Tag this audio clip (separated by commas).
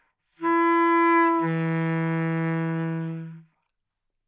Music, Musical instrument, Wind instrument